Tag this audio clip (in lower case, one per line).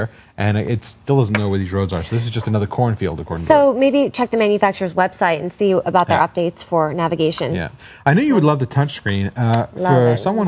speech